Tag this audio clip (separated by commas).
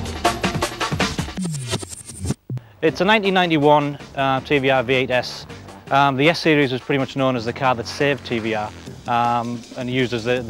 Speech, Music